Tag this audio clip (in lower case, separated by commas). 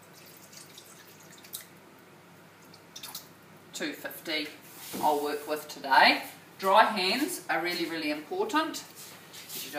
speech